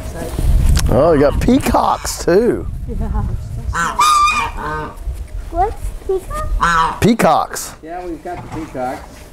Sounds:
Speech

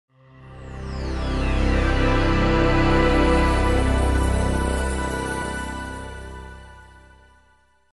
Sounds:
Sound effect

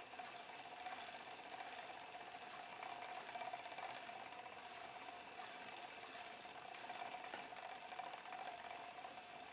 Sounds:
inside a small room

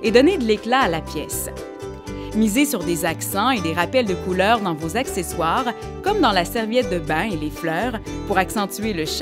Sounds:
Music, Speech

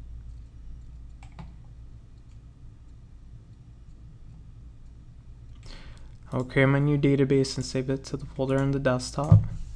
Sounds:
Speech

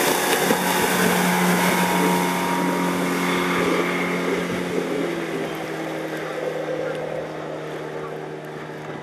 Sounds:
Vehicle, Motorboat

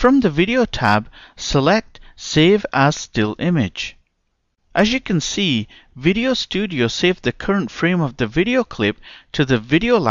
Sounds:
Speech

